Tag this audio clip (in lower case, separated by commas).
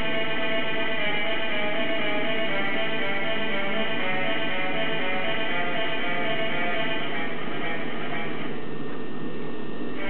theme music, musical instrument, music